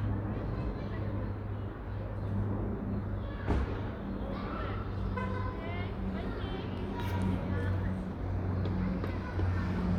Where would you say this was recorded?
in a residential area